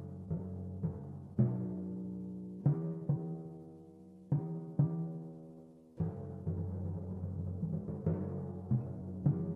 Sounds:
playing timpani

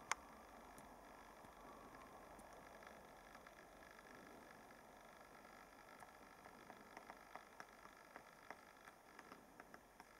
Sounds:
woodpecker pecking tree

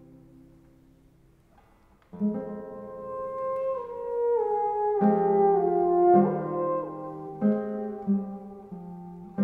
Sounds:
playing theremin

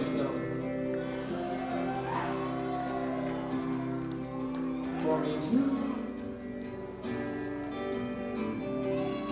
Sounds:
music

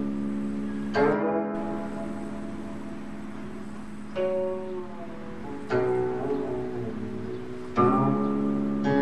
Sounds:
music

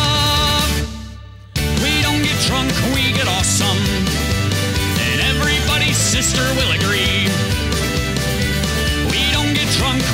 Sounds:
music

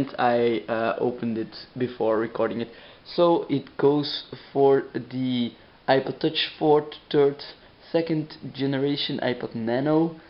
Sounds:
speech

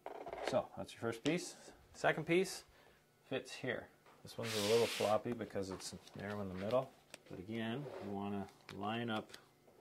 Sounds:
speech

